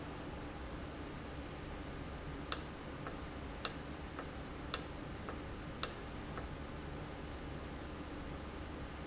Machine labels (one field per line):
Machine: valve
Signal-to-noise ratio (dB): 0 dB